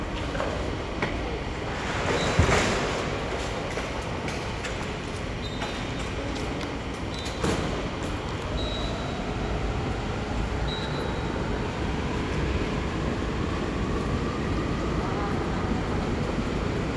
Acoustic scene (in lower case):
subway station